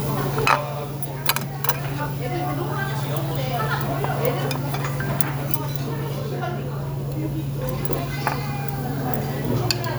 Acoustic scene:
restaurant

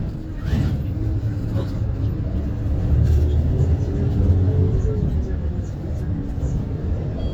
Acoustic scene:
bus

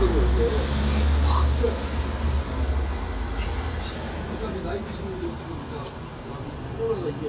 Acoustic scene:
street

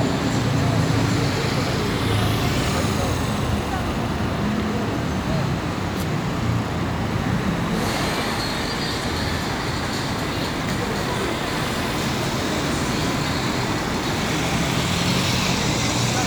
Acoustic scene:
street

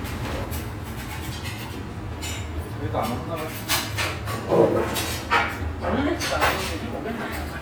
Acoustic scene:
restaurant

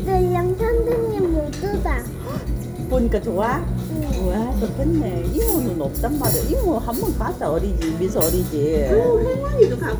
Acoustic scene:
restaurant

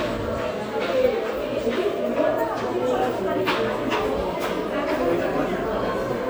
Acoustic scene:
subway station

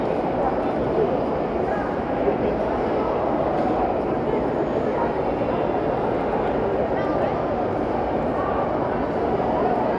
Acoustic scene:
crowded indoor space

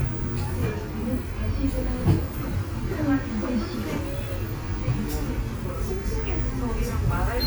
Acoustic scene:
bus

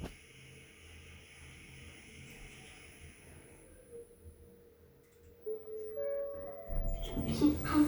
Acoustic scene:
elevator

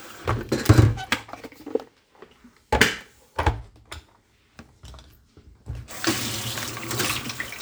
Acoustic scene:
kitchen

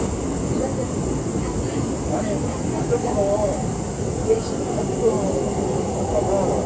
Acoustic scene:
subway train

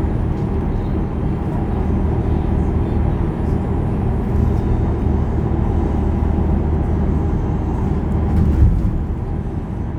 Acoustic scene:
bus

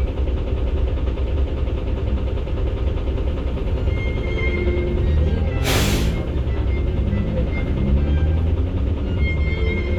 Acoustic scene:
bus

